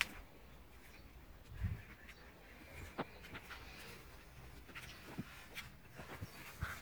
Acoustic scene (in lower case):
park